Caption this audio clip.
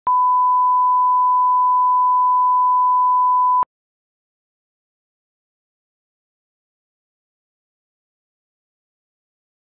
A constant beep is heard non stop